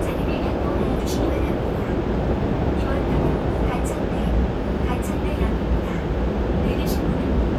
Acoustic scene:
subway train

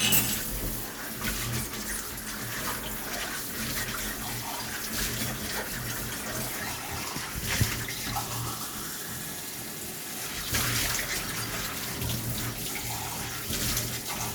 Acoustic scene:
kitchen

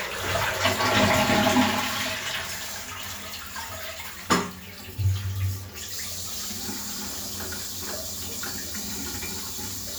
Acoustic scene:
restroom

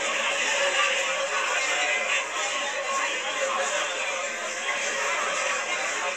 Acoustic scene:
crowded indoor space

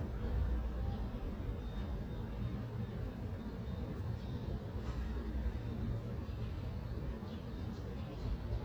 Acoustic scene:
residential area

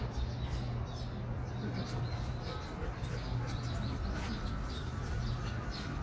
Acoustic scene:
park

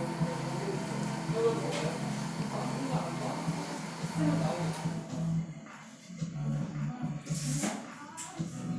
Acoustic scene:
cafe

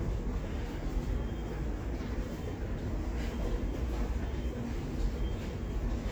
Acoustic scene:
subway station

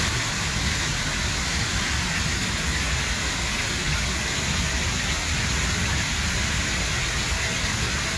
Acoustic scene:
park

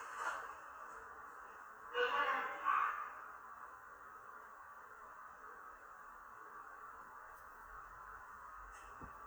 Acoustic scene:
elevator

